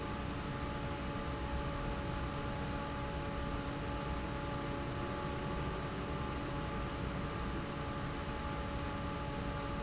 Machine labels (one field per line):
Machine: fan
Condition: normal